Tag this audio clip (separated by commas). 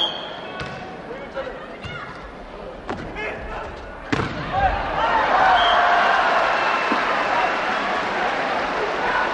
inside a large room or hall, Speech